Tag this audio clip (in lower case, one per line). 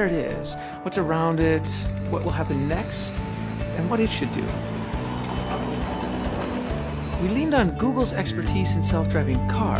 speech
vehicle
music